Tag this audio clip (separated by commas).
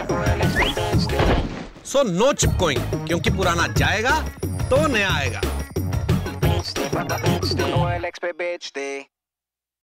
Speech, Music